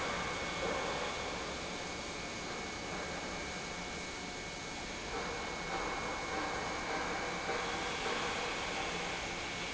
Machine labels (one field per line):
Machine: pump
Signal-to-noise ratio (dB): -6 dB